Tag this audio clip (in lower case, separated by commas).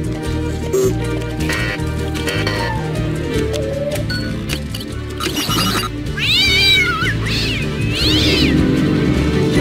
music, meow, pets, animal, cat